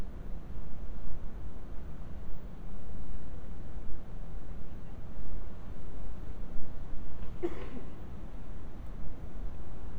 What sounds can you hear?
background noise